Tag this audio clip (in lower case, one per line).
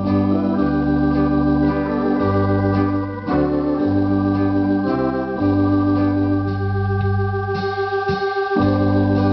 piano
music
playing hammond organ
musical instrument
hammond organ
keyboard (musical)